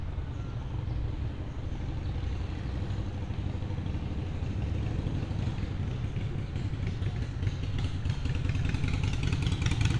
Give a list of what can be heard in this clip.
medium-sounding engine